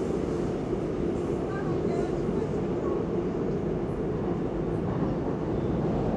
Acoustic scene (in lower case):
subway train